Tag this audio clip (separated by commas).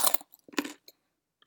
mastication